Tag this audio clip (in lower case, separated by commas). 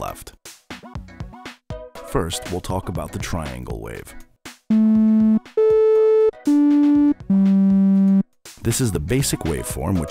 speech, music